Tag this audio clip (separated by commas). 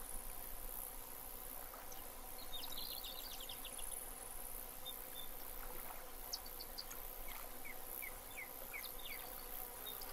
outside, rural or natural